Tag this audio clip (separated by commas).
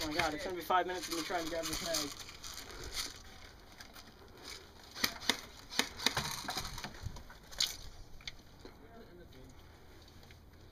Speech